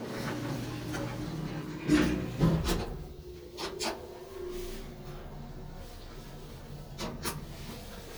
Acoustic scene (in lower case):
elevator